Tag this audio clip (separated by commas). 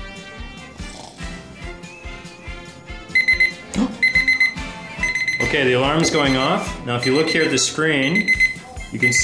Music, Speech, Alarm